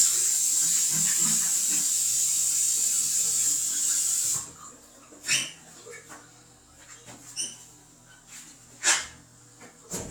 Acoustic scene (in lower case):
restroom